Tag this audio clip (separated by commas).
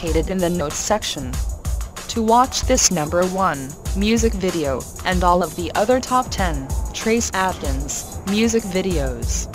Music, Speech